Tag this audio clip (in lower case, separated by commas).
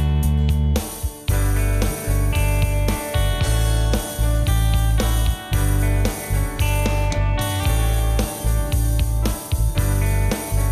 music